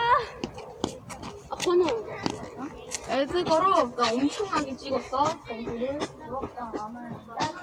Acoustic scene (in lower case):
residential area